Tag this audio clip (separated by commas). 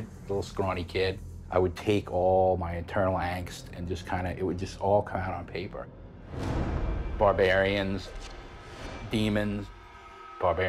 Music, Speech